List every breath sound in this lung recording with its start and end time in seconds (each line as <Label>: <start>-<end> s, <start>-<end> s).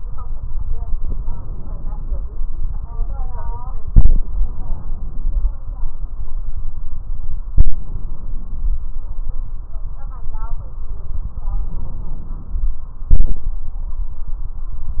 Inhalation: 0.93-2.20 s, 11.54-12.79 s
Exhalation: 13.08-13.59 s